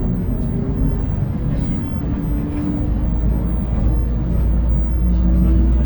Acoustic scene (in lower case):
bus